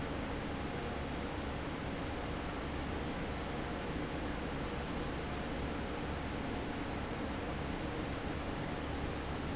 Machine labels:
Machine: fan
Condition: abnormal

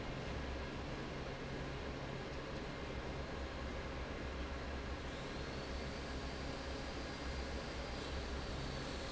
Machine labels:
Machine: fan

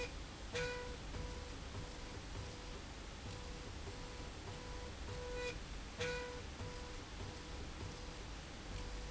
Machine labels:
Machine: slide rail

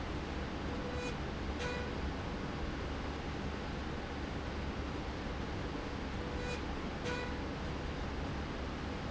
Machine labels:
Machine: slide rail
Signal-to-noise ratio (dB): -6 dB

